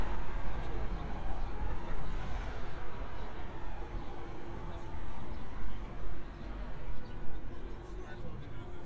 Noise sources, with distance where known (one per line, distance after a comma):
medium-sounding engine
car horn
person or small group talking